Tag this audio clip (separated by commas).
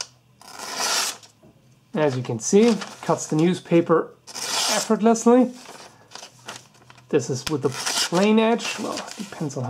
Speech, Tools, inside a small room